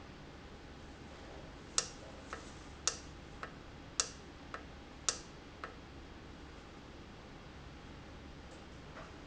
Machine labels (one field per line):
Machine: valve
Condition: normal